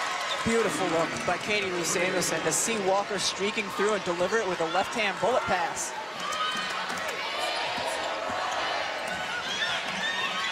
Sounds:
basketball bounce

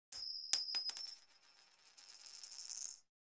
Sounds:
Coin (dropping)

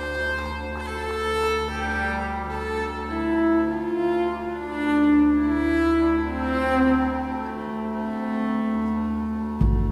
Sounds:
Cello, Music, Classical music

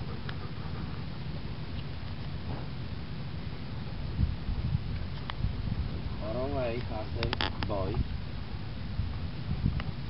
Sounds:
Speech, outside, rural or natural

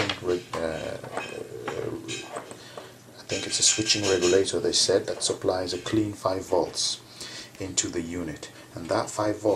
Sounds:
Speech, inside a small room

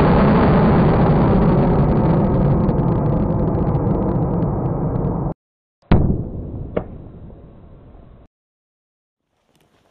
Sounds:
missile launch

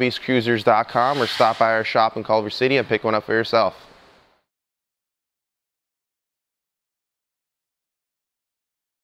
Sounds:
Speech

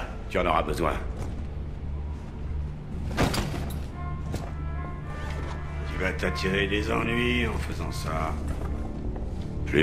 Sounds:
Speech, Music

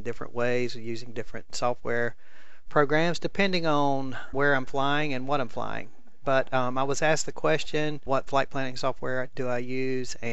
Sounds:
Speech

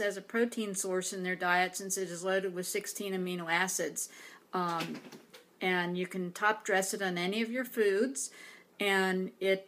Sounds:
Speech

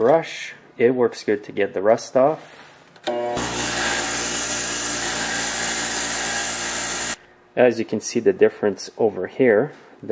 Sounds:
Power tool, Tools

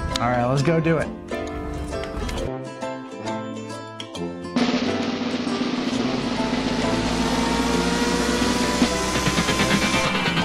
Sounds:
Speech, Vehicle, Car passing by, Music, Car

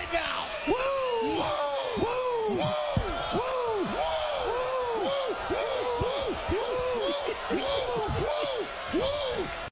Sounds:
Speech

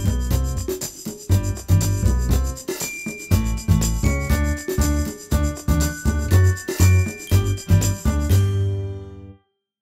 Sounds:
Music

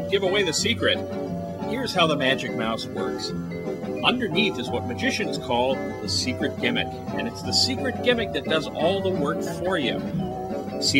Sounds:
Speech, Music

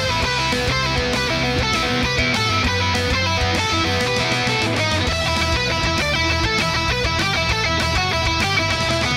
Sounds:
Guitar, Music, Musical instrument, Electric guitar, Plucked string instrument

